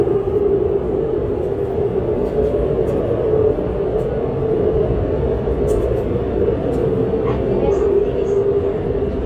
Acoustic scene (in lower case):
subway train